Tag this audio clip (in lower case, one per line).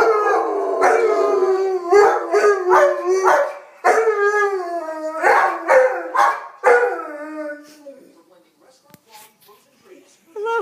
dog howling